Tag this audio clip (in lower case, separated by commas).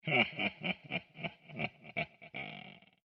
human voice, laughter